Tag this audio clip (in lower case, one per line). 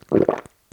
liquid